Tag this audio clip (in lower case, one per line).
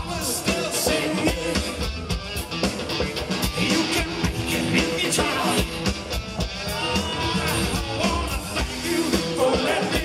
music